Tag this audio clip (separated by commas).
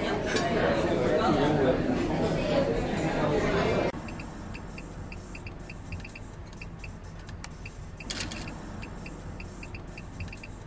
inside a public space, outside, urban or man-made, Speech, Music